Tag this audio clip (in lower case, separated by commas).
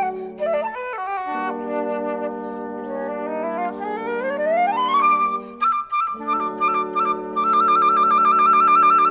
brass instrument, trombone